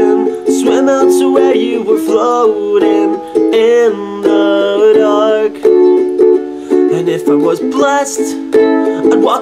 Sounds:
music

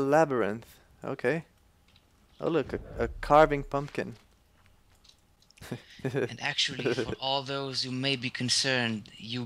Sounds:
speech, tick, tick-tock

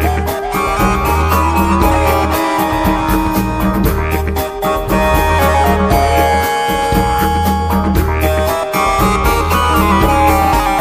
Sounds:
music, musical instrument, drum

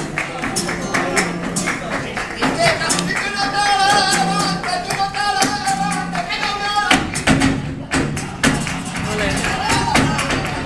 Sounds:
music of latin america, tambourine, crowd, music, singing, speech

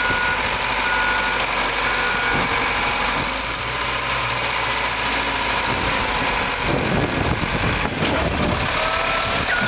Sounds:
vehicle, heavy engine (low frequency)

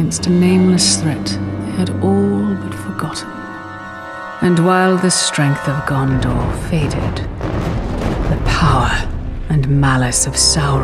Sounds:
music, speech

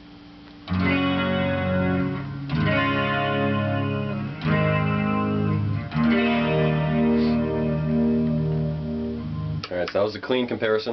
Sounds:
speech, music

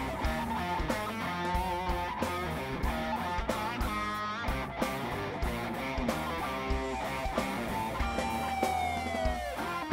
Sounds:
music, musical instrument

